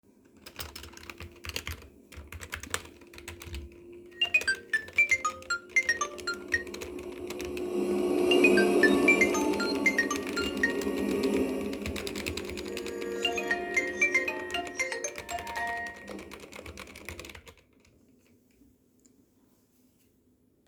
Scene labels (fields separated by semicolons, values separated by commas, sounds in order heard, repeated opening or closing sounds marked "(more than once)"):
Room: living room; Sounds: keyboard typing, phone ringing, vacuum cleaner